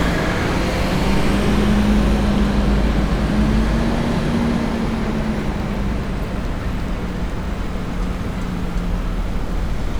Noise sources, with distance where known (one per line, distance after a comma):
large-sounding engine, near